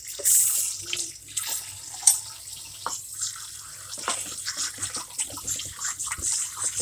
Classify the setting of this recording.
kitchen